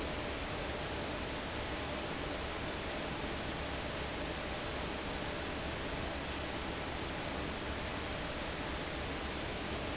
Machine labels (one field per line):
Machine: fan